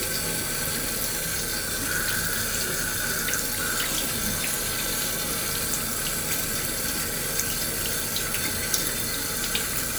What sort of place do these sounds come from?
restroom